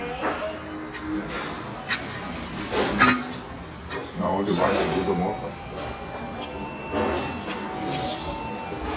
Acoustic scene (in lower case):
restaurant